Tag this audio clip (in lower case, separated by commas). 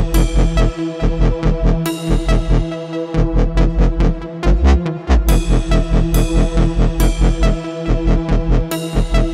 music